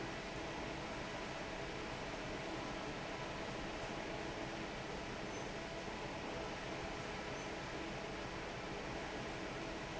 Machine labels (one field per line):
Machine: fan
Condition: normal